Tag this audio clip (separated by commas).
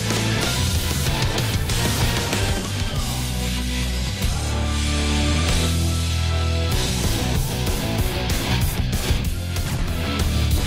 Music